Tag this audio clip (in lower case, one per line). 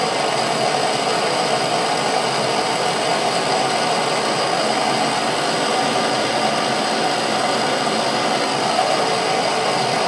blowtorch igniting